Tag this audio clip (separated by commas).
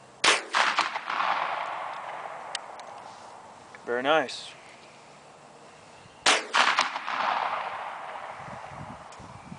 cap gun shooting